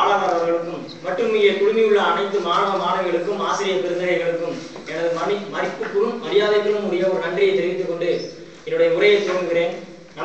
A man giving a speech